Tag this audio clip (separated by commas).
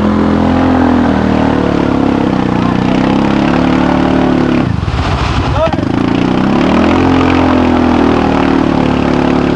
Speech